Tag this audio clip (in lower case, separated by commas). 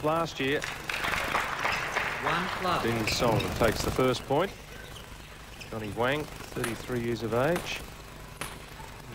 speech